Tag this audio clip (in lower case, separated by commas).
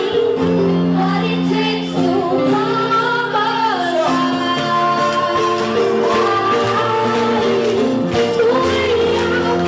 music, speech